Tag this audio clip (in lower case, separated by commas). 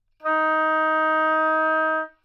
woodwind instrument, music, musical instrument